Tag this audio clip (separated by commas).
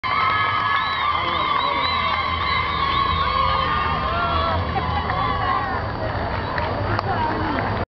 Speech, man speaking